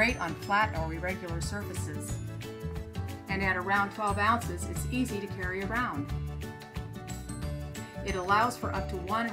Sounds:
music
speech

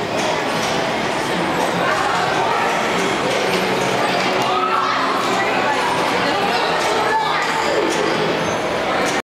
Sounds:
speech

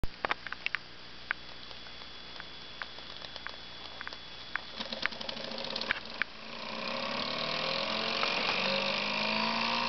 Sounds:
engine

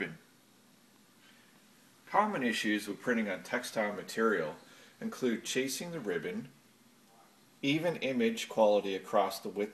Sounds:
speech

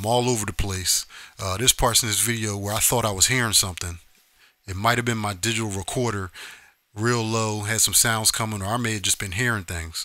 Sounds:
speech

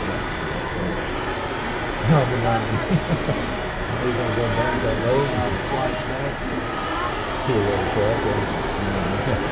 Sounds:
speech

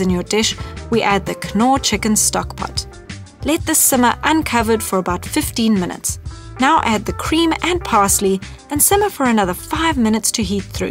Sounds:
speech
music

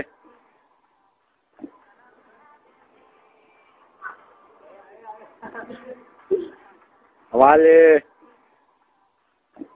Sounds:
speech

